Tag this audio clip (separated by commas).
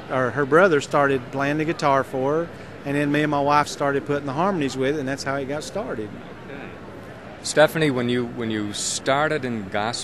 Speech